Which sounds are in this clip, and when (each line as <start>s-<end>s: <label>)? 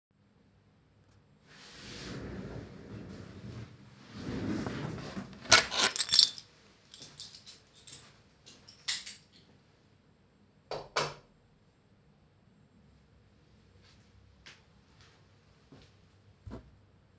5.4s-9.5s: keys
10.6s-11.4s: light switch
14.5s-16.6s: footsteps